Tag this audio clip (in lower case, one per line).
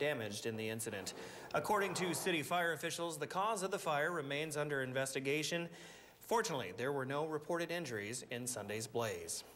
speech